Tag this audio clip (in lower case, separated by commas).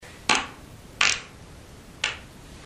fart